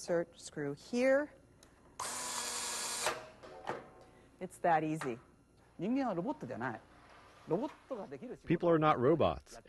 A woman speaks followed by drilling followed by a man speaking and replaced by another man speaking